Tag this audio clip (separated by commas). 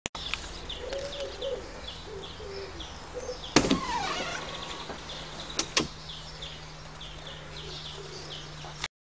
Sliding door, Power windows, Tap